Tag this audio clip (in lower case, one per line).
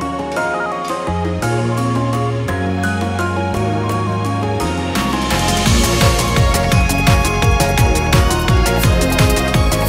music